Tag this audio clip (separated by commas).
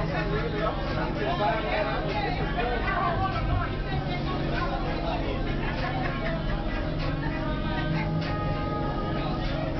Speech, Vehicle